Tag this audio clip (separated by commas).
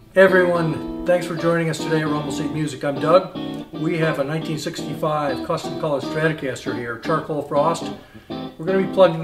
Guitar, Speech, Musical instrument, Plucked string instrument, Music